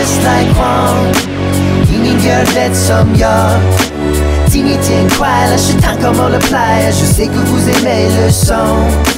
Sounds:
rapping

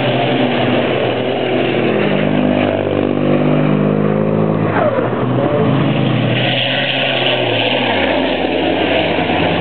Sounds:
Truck, Vehicle

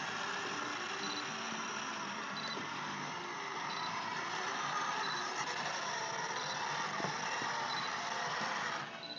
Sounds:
Vehicle

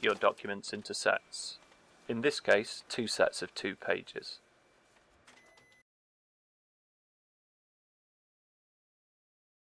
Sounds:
Speech, Printer

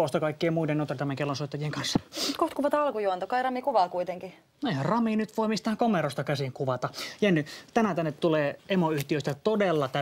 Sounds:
Speech

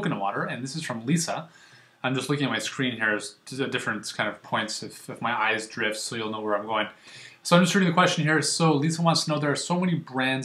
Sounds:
Speech

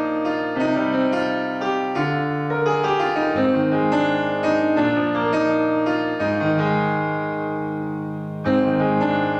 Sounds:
Piano, playing piano, Music

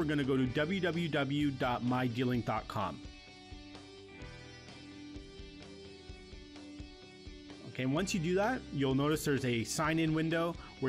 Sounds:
Music, Speech

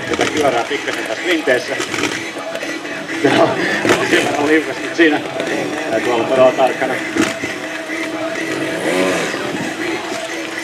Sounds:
Vehicle, Music, Speech

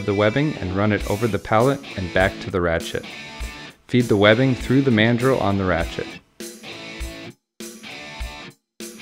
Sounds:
Speech, Music

